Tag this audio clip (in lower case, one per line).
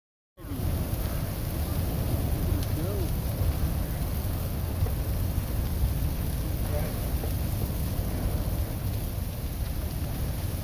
wind
fire